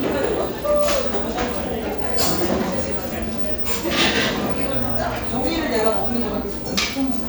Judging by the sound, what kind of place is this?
cafe